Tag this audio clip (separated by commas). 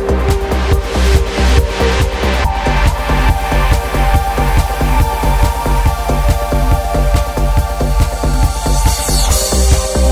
Music, Trance music, Techno